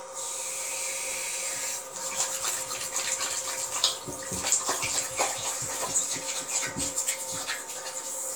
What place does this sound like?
restroom